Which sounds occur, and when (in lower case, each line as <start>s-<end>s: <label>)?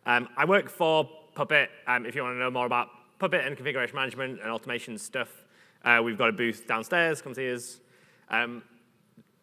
0.0s-1.0s: man speaking
0.0s-9.4s: background noise
1.3s-1.6s: man speaking
1.8s-2.8s: man speaking
3.2s-5.3s: man speaking
5.2s-5.8s: breathing
5.8s-7.8s: man speaking
7.8s-8.3s: breathing
8.3s-8.8s: man speaking